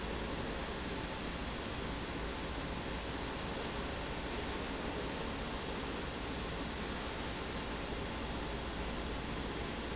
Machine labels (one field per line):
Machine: fan